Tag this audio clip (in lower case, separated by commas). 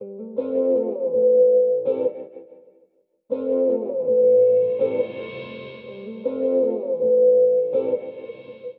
music, guitar, plucked string instrument, musical instrument